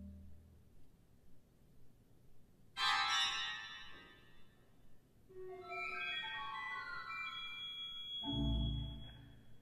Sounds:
musical instrument
keyboard (musical)
music
piano

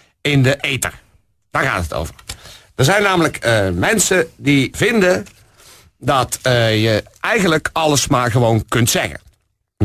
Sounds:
speech

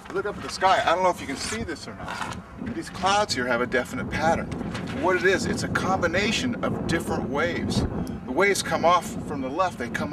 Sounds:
speech

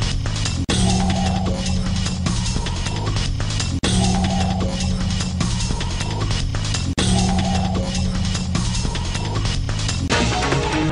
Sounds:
sound effect

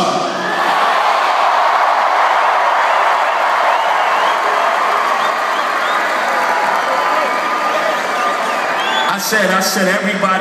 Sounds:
speech
monologue
male speech

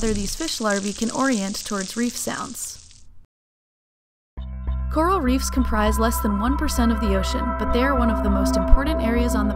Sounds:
music
speech

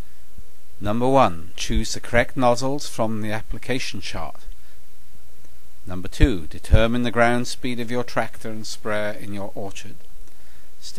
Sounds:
speech

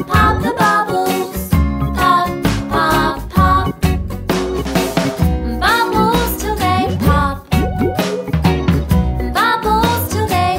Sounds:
music
music for children

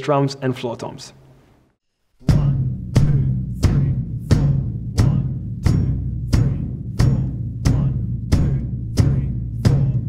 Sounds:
playing tympani

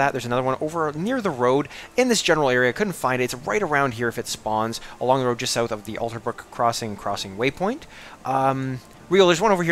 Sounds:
speech

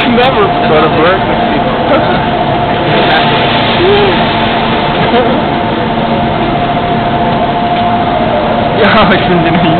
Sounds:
vehicle
speech

